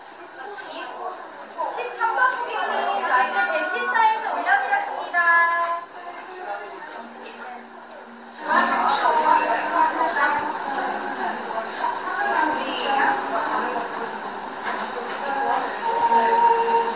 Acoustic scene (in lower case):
cafe